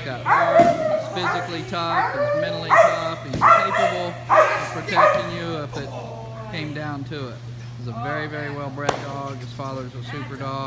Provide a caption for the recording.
A dog is barking and a couple people are speaking over it